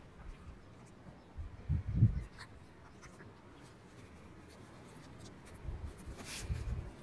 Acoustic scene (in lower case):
park